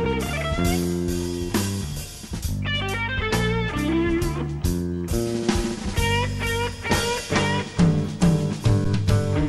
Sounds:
musical instrument, guitar, plucked string instrument, music

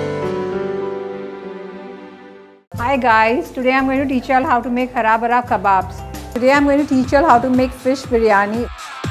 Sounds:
speech, music

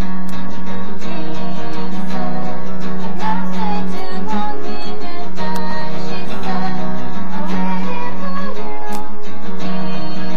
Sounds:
musical instrument, guitar, music, electric guitar

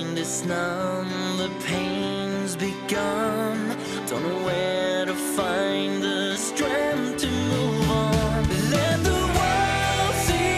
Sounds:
music

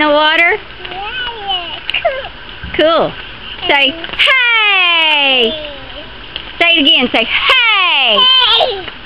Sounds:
speech

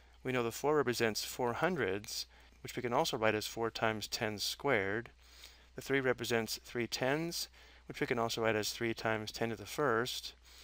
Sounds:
speech

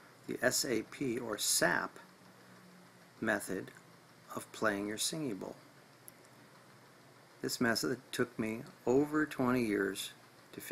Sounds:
speech

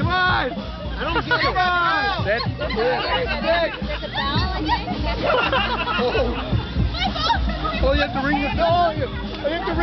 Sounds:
crowd

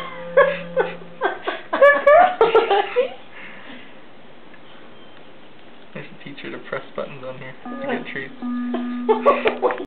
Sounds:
music, speech

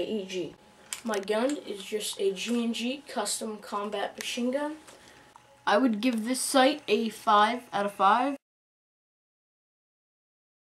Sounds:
speech

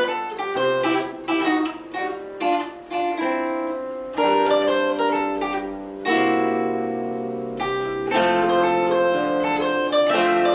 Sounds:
zither, pizzicato

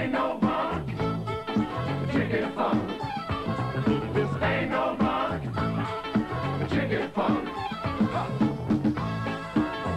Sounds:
music, funk

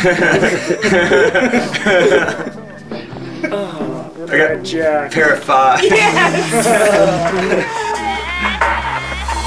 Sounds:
speech, music

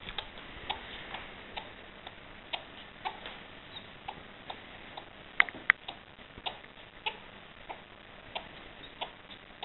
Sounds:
inside a small room, animal, pets

